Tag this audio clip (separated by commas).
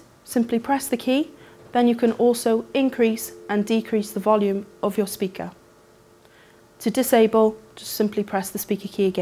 Speech